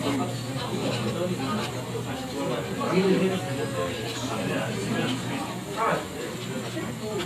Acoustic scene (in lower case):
crowded indoor space